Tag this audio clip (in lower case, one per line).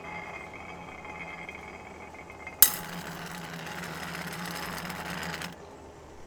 glass